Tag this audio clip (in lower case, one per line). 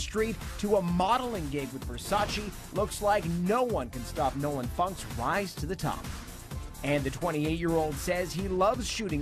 music
speech